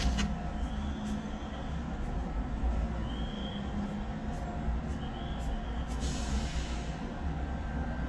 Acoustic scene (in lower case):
residential area